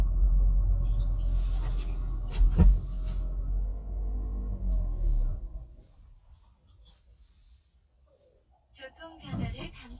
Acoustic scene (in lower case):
car